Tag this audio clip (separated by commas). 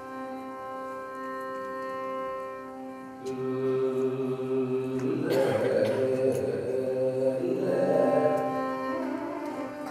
Music, Singing, Musical instrument, Carnatic music, Classical music